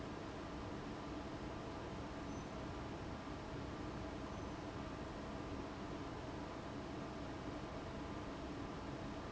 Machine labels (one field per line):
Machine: fan